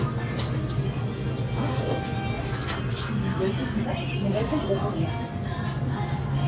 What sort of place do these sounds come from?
cafe